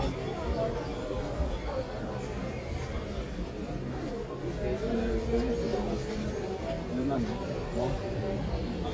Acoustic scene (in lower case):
crowded indoor space